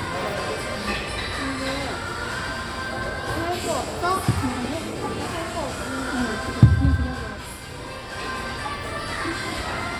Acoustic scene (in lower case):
cafe